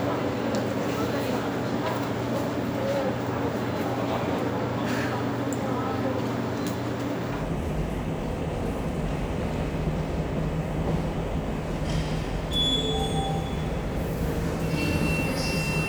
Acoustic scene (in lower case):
subway station